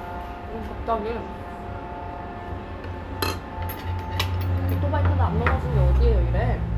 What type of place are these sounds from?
restaurant